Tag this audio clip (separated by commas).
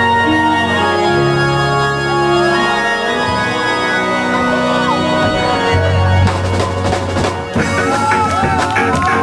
Music, Speech